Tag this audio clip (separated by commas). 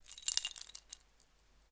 home sounds, Rattle, Keys jangling